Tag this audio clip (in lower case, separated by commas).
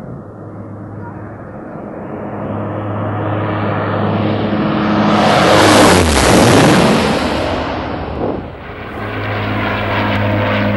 airplane flyby